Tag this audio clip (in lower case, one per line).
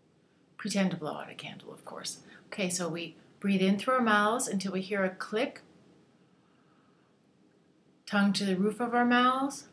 speech